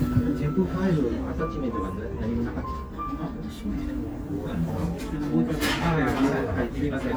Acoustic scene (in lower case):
restaurant